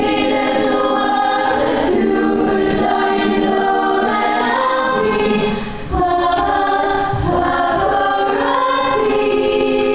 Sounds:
music

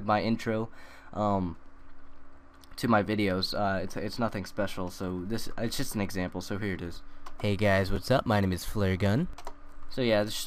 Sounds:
speech

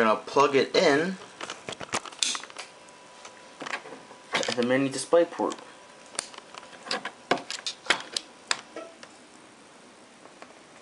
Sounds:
speech

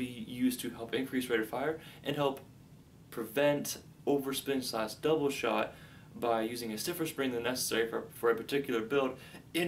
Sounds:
inside a small room, speech

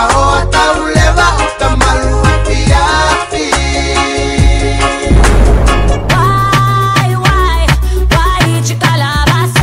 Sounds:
music

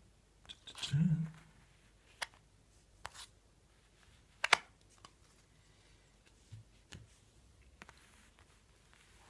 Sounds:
silence

